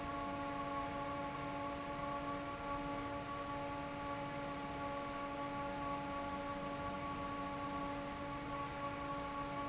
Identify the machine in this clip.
fan